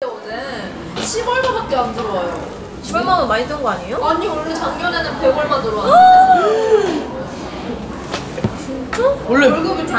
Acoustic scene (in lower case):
cafe